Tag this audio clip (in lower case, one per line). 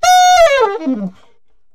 musical instrument
wind instrument
music